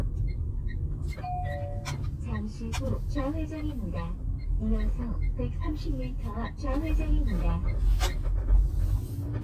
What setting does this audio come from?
car